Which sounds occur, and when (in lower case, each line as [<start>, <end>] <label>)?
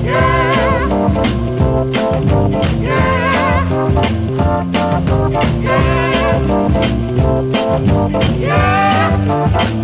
[0.01, 9.83] music